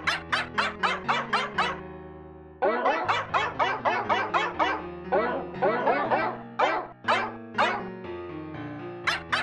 A dog barking over music